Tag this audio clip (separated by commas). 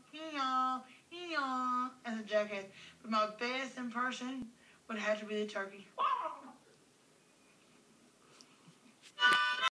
Music, Speech